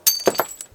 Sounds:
Shatter, Glass

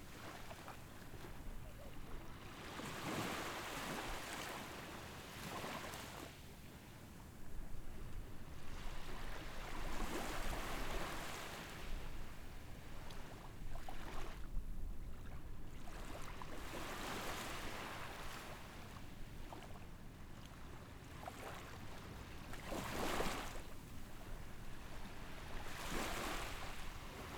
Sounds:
Ocean, Water, Waves

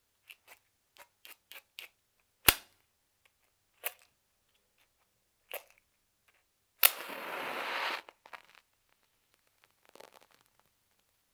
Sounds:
Fire

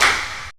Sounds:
Clapping, Hands

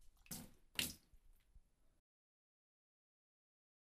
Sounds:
Liquid, splatter

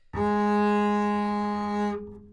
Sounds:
Bowed string instrument, Music, Musical instrument

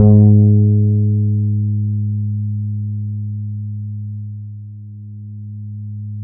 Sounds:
Plucked string instrument, Guitar, Music, Musical instrument, Bass guitar

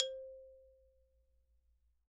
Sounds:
Mallet percussion, Marimba, Music, Musical instrument, Percussion

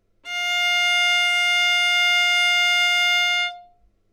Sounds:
Musical instrument, Bowed string instrument, Music

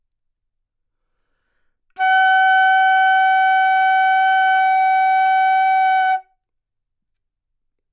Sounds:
Music, Musical instrument, woodwind instrument

